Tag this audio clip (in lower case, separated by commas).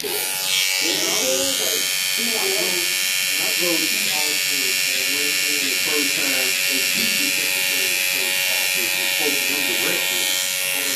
speech